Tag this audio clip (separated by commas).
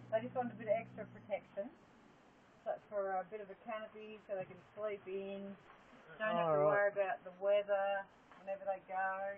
Speech